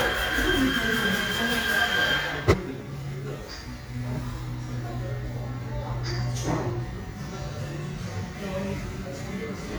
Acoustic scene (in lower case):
cafe